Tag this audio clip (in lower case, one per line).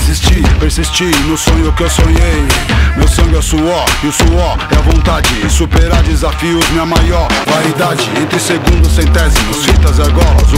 music